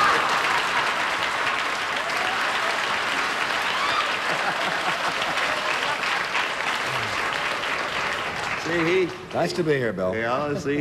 An audience applause as a man laughs and then speaks